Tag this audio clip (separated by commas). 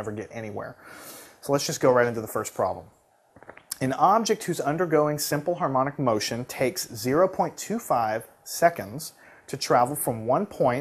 Speech